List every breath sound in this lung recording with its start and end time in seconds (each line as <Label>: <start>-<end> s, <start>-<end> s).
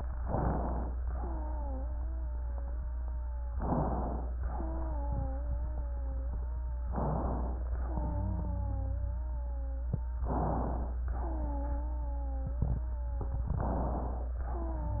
Inhalation: 0.18-0.95 s, 3.54-4.29 s, 6.87-7.63 s, 10.27-11.02 s, 13.57-14.32 s
Wheeze: 1.01-3.59 s, 4.37-6.94 s, 7.67-10.24 s, 11.16-13.52 s, 14.42-15.00 s